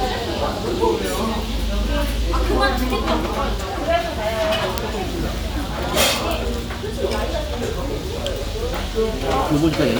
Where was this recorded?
in a restaurant